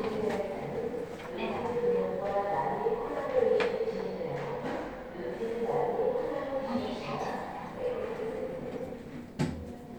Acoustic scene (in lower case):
elevator